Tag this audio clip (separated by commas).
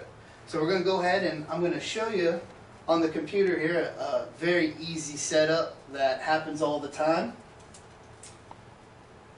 Speech